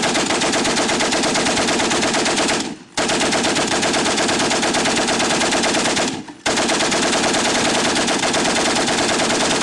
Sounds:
machine gun shooting, Machine gun, Gunshot

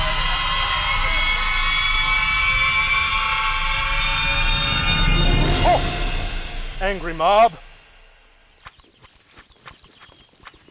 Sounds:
Speech, Music

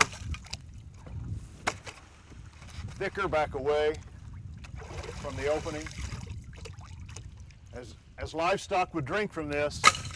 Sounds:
pumping water

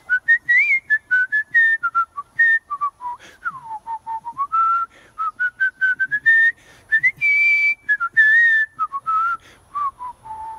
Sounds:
people whistling

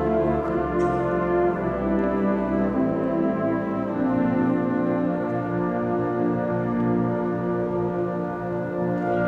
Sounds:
Music

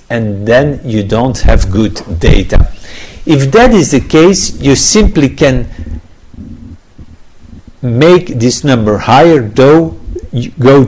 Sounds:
Speech

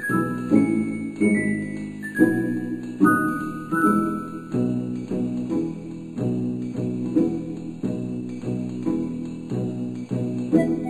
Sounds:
Music, Theme music

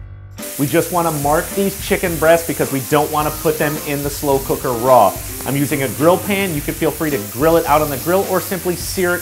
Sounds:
Speech, Music

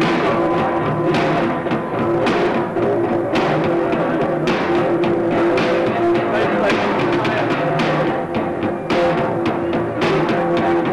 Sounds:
Music

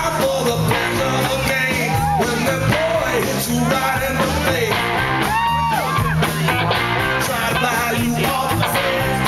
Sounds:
Speech, Music, Jazz, Middle Eastern music

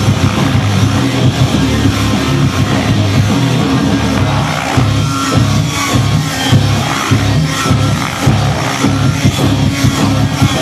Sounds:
Music, Exciting music

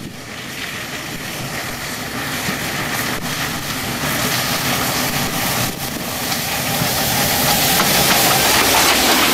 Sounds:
train wagon, Train, Clickety-clack, Rail transport

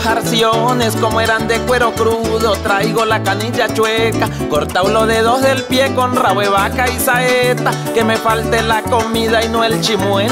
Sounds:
Music

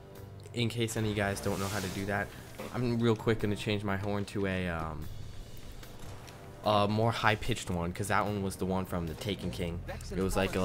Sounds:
Music, Speech

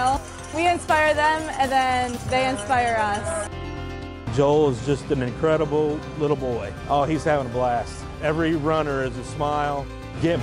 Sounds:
Speech, Music

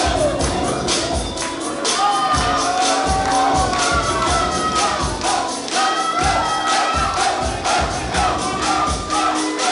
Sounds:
Wedding music, Music

